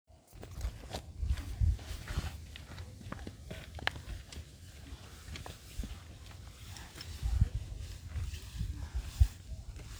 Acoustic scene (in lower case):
park